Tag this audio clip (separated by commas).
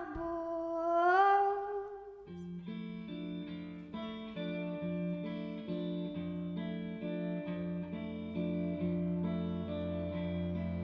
Music